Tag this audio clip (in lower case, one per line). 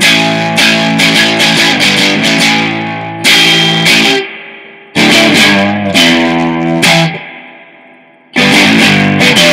music